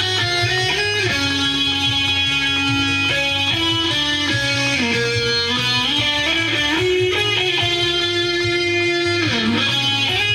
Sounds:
plucked string instrument, playing electric guitar, guitar, musical instrument, strum, music, electric guitar

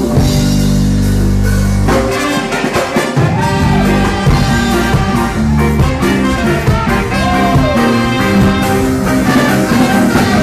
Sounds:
saxophone, musical instrument, music, brass instrument

